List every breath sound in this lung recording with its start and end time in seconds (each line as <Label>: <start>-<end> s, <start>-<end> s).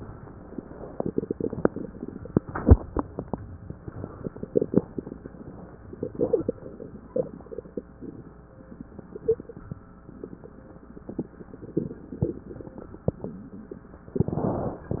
Inhalation: 14.18-14.84 s
Exhalation: 14.87-15.00 s